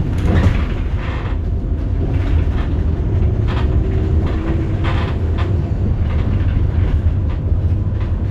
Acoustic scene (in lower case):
bus